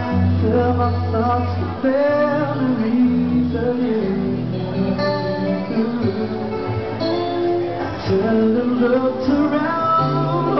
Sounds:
Music

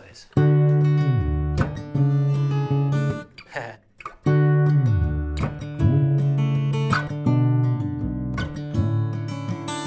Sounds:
Music

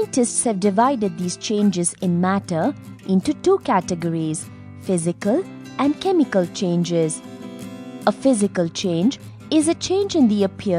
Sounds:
Speech, Music

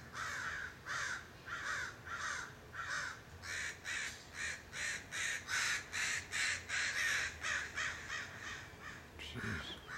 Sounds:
crow cawing

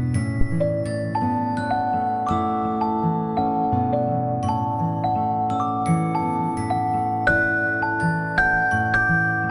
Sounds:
Music

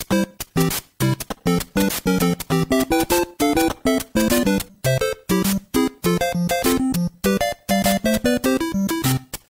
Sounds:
Music

